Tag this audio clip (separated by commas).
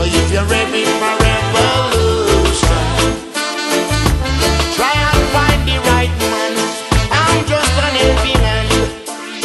Music, Reggae